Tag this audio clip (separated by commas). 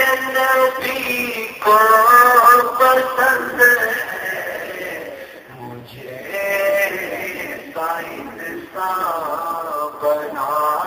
Speech